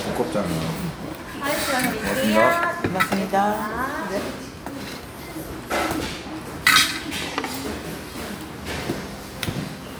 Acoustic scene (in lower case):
restaurant